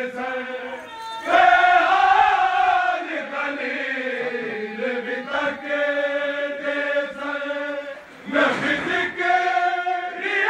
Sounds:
outside, urban or man-made

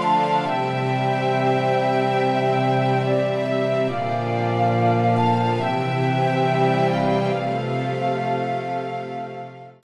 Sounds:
music

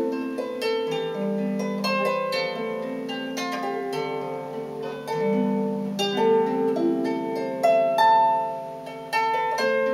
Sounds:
music
playing harp
harp

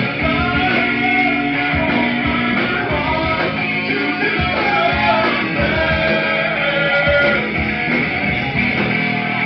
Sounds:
music

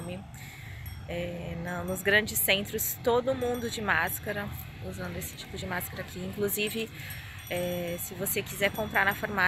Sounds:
people battle cry

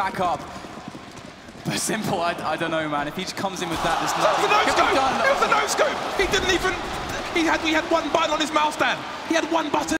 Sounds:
speech

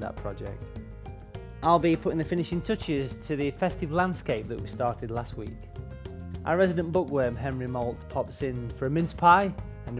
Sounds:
music
speech

